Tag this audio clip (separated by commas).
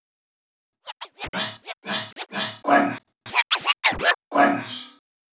Scratching (performance technique), Music, Musical instrument